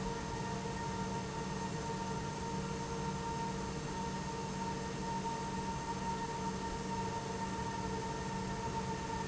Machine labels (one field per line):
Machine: pump